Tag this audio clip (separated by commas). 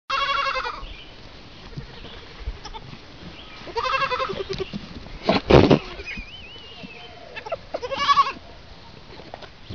Domestic animals, livestock, Goat, Animal